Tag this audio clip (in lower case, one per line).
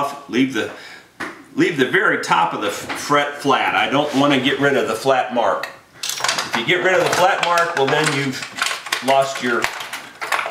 silverware